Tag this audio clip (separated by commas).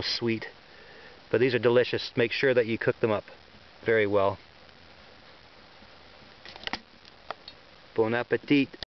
Speech